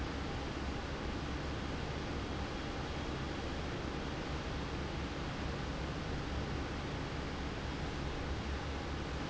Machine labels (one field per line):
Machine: fan